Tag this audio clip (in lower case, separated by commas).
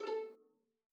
music, bowed string instrument, musical instrument